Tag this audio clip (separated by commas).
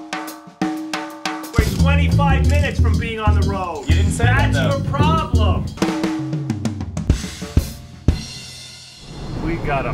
Rimshot, Drum kit, Drum, Bass drum, Snare drum, Percussion